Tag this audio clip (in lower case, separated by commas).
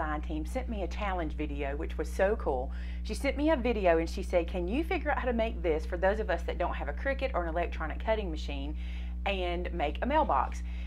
inside a small room, speech